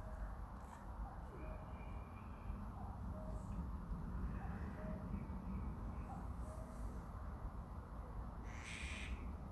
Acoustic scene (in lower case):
park